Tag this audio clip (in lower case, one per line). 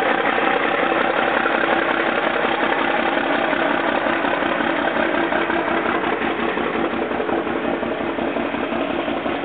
truck
vehicle